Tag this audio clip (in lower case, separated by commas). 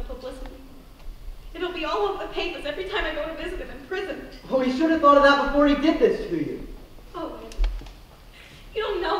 speech